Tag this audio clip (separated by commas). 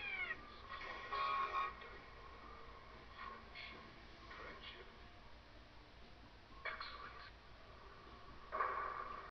Speech